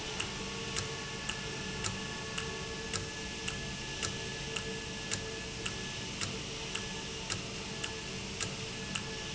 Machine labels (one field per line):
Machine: valve